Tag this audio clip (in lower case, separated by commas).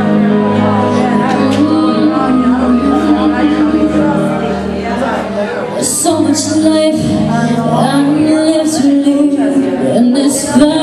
speech, female singing, music